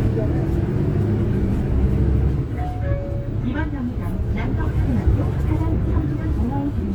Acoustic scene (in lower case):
bus